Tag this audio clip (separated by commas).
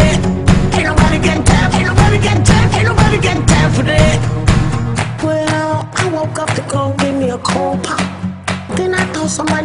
Music